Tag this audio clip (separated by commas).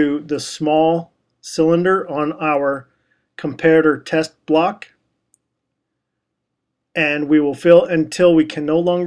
Speech